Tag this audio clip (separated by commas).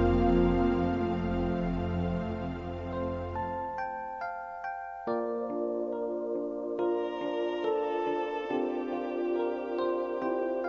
Music